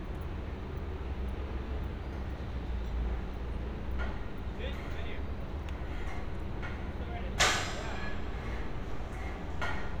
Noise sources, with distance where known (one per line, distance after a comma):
person or small group talking